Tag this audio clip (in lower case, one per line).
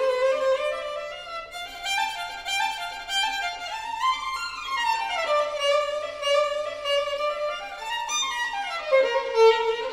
music
violin
musical instrument